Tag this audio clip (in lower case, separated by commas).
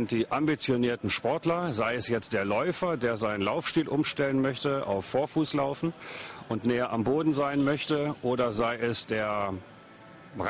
music, speech